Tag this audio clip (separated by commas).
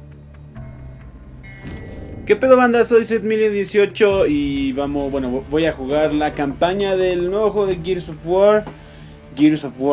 Speech, Music